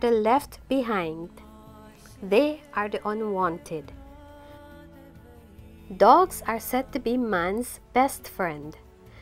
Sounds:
music, speech

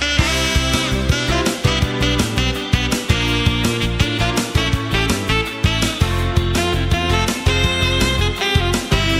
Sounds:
music

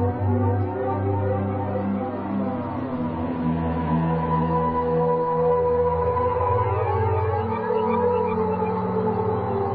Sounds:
music

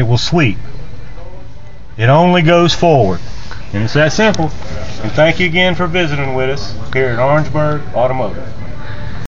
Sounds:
speech

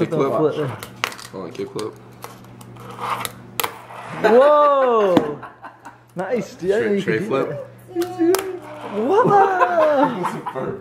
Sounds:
laughter, speech

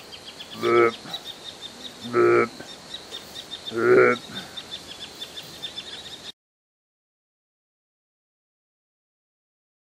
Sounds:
oink

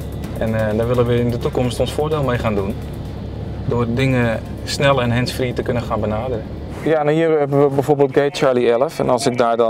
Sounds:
speech, music

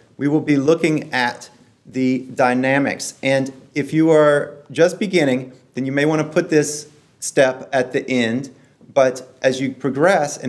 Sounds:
speech

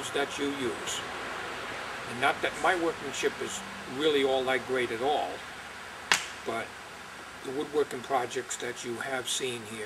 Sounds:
speech

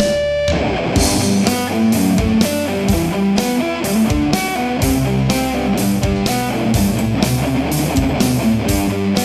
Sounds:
plucked string instrument, music, playing electric guitar, guitar, electric guitar, musical instrument

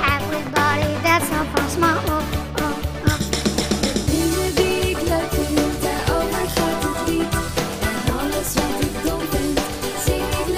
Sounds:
music

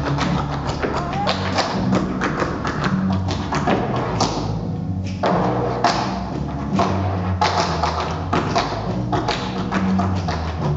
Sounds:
musical instrument, speech, tap, music

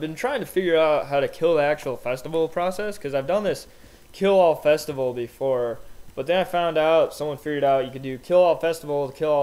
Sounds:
speech, speech synthesizer

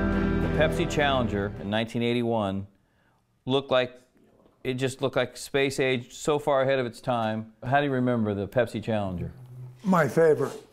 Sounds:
music, speech

